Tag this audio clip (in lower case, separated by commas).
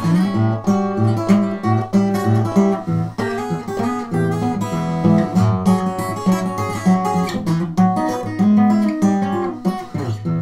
strum, acoustic guitar, music, plucked string instrument, playing acoustic guitar, musical instrument, guitar